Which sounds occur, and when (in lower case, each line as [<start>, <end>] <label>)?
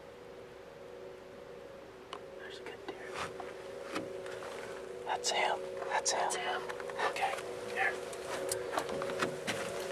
[0.00, 9.91] music
[0.01, 9.91] background noise
[2.11, 3.33] man speaking
[5.07, 5.56] man speaking
[5.86, 7.44] man speaking
[7.67, 8.08] man speaking